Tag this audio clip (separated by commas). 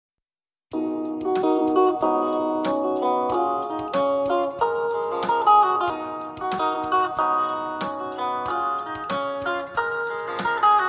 Music